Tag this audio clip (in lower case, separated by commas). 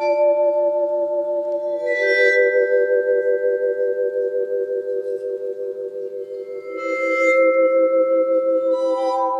glockenspiel, marimba, mallet percussion